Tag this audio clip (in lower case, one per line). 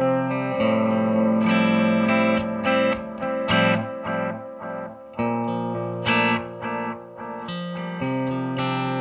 music
musical instrument
guitar
plucked string instrument